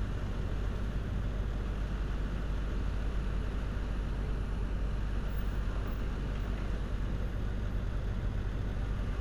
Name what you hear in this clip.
large-sounding engine